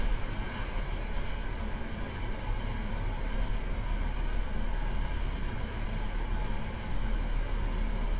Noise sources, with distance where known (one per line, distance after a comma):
engine of unclear size, near